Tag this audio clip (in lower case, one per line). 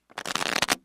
domestic sounds